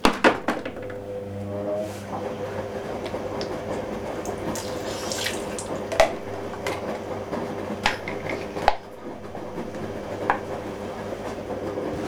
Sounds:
Engine

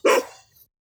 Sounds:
Dog, pets, Animal, Bark

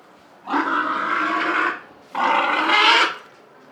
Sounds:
Animal, livestock

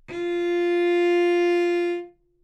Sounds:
Musical instrument, Music, Bowed string instrument

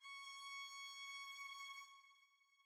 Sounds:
Music, Bowed string instrument, Musical instrument

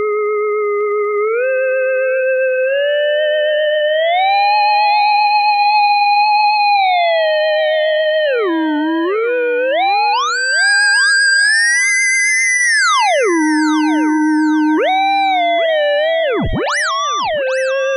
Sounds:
Music, Musical instrument

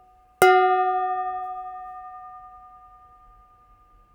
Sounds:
dishes, pots and pans, home sounds

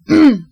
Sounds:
Respiratory sounds, Cough

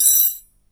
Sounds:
home sounds, silverware

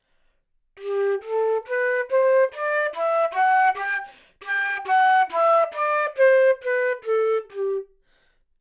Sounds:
Musical instrument, Music, woodwind instrument

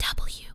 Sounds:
Human voice, Whispering

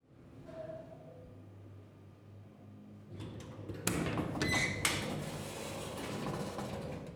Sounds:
Sliding door, Domestic sounds, Door

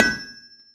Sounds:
Tools

